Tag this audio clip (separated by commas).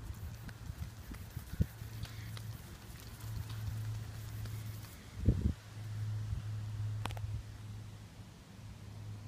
Speech